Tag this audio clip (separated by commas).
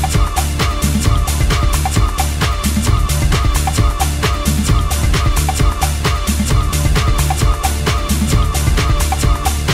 Music, Disco